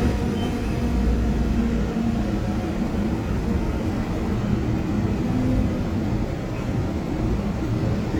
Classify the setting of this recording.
subway train